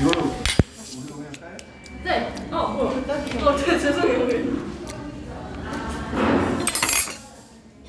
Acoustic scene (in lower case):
restaurant